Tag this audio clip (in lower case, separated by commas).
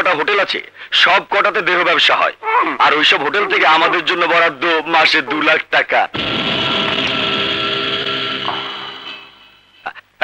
police radio chatter